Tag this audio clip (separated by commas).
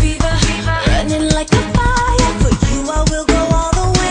Music